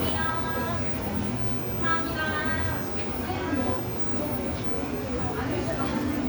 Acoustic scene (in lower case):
cafe